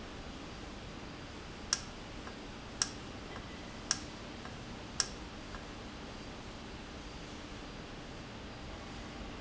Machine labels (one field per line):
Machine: valve